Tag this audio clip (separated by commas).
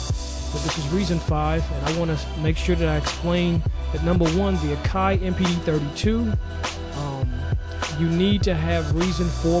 Speech, Music, Sampler